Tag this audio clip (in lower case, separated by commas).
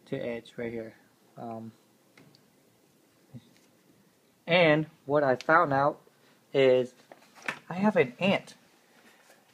speech